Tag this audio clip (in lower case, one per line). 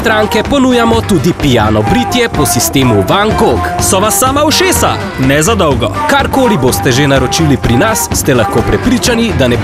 music
speech
radio